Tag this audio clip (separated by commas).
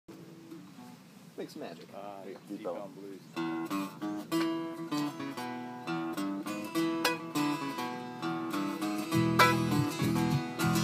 Mandolin, Zither